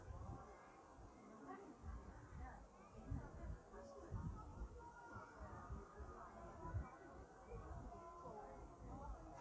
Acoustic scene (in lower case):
park